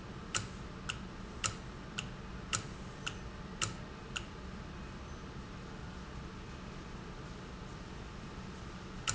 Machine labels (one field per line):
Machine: valve